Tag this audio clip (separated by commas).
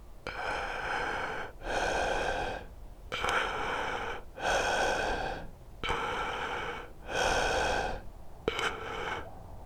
Breathing, Respiratory sounds